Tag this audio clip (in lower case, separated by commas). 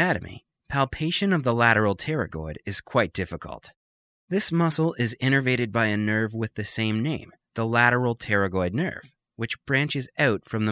speech, narration